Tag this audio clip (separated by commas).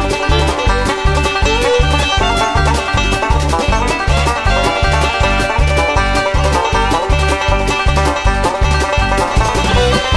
Music